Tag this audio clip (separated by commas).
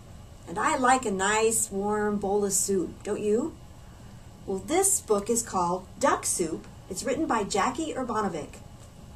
Speech